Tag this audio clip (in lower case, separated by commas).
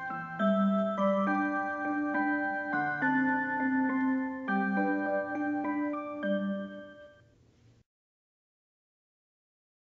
music